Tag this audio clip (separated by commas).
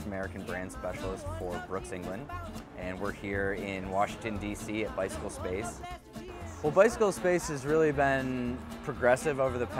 Speech, Music